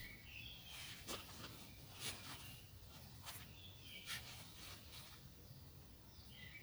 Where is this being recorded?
in a park